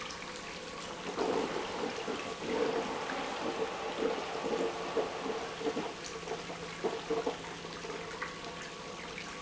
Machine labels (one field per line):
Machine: pump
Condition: abnormal